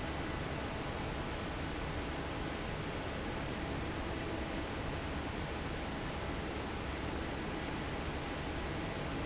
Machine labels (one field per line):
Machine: fan